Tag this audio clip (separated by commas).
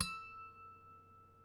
Musical instrument, Harp, Music